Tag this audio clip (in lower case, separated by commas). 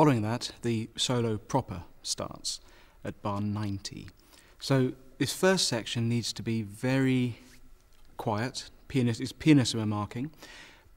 speech